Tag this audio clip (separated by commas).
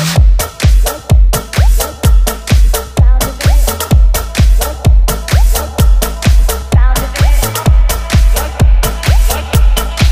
Music